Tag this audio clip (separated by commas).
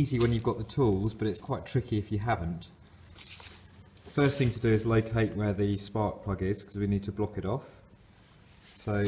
Speech